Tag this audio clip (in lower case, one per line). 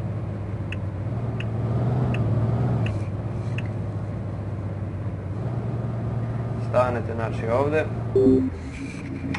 truck
vehicle
speech